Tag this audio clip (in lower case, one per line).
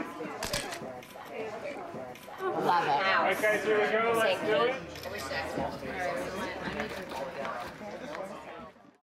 speech